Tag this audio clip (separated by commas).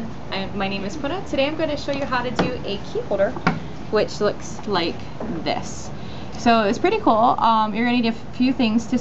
Speech